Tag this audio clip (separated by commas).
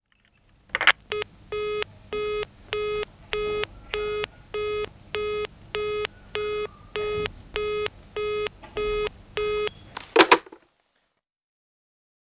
Telephone, Alarm